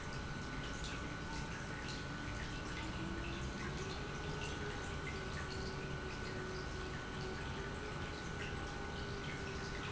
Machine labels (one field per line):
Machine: pump